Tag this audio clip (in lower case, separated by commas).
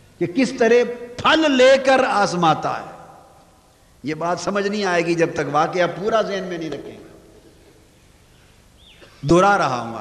monologue, man speaking, speech